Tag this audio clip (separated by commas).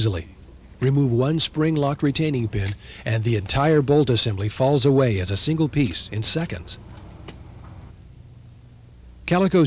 Speech